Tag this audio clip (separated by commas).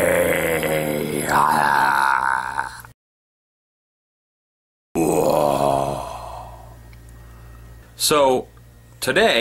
Groan